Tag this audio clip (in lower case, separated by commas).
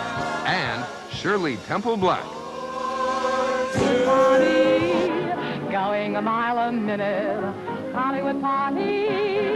music, speech